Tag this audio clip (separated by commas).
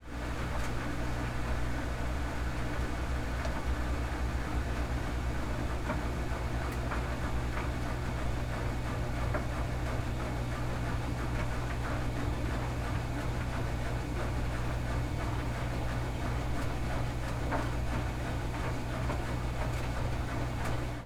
Engine